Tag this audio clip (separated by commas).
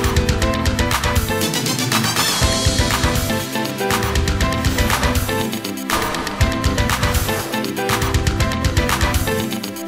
Music